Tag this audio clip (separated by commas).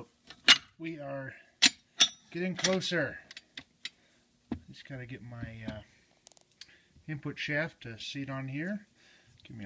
Speech